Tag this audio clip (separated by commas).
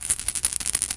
Rattle